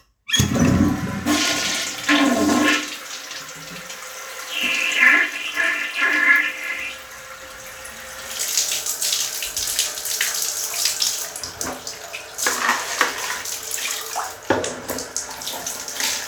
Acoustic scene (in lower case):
restroom